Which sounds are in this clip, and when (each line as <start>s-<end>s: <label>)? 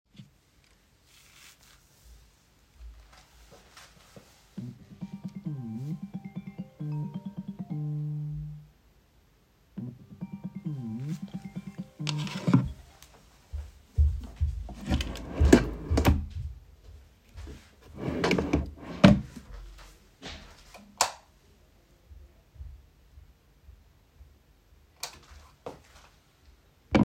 4.5s-8.6s: phone ringing
9.7s-13.0s: phone ringing
13.9s-17.9s: footsteps
14.7s-16.6s: wardrobe or drawer
18.0s-19.4s: wardrobe or drawer
21.0s-21.3s: light switch
25.0s-25.2s: light switch
25.6s-25.8s: footsteps